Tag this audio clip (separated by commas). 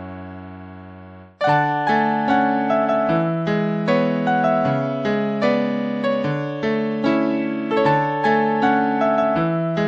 Music